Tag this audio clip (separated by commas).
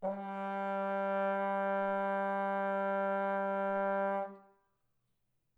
Musical instrument, Brass instrument, Music